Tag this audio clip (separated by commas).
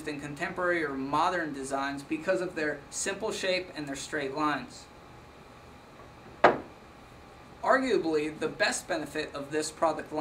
Speech